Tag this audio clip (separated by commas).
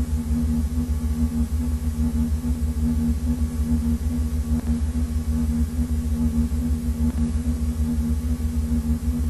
Pulse